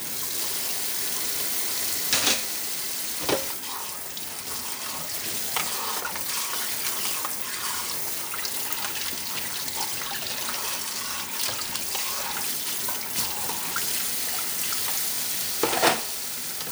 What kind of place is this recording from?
kitchen